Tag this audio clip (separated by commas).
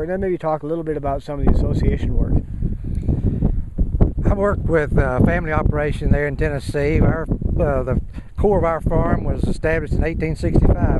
Speech